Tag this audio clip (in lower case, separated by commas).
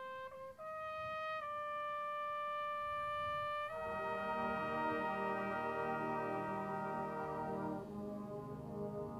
french horn, brass instrument